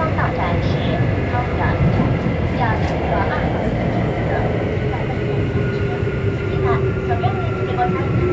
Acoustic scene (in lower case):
subway train